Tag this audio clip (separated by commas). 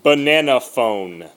Speech, Human voice